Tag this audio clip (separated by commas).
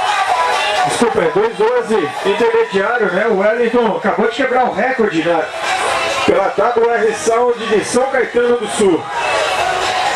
Speech, speech babble, Music